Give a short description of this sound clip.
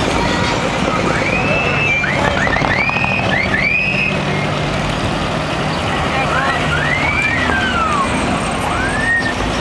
Engine is running, a siren is sounding. People are talking